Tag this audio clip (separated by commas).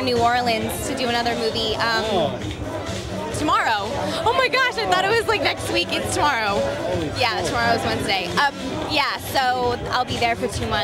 Speech, Music